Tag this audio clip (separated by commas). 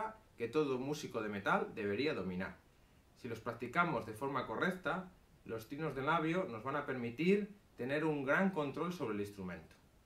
Speech